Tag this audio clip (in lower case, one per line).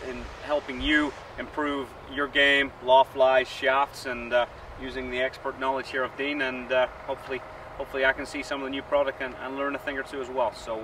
speech